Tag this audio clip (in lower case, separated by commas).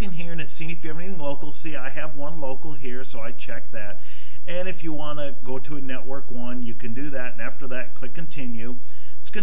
speech